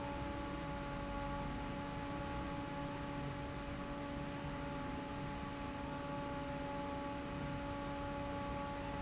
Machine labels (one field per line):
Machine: fan